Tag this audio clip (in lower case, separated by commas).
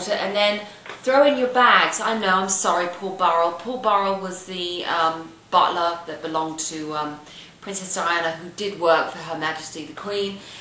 speech